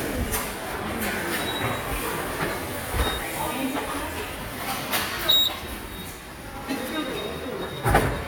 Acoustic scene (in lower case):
subway station